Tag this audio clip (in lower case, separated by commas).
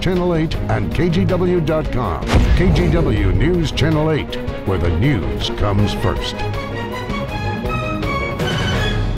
music, speech